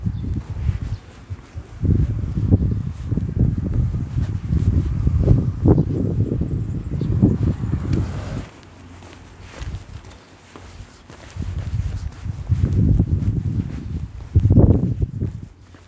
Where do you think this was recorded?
in a residential area